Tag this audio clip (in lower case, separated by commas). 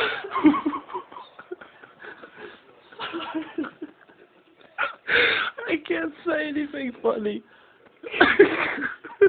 speech, inside a small room